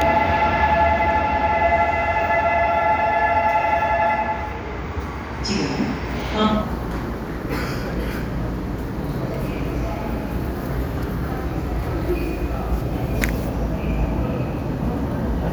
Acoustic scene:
subway station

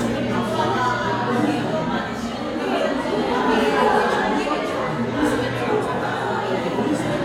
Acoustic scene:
crowded indoor space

